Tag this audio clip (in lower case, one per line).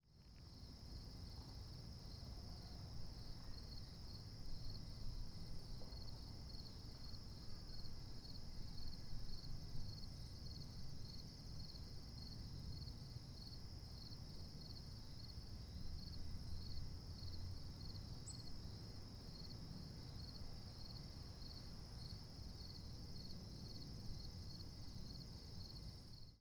animal
wild animals
cricket
insect